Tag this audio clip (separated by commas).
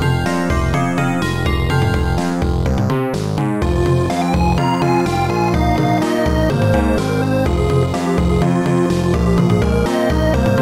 Music, Video game music